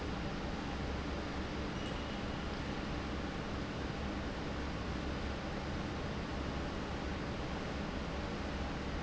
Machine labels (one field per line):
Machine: fan